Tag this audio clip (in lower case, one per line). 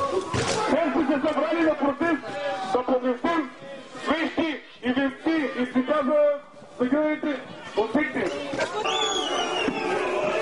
speech
television